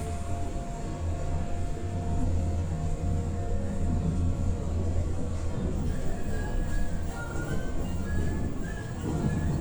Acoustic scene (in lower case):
subway train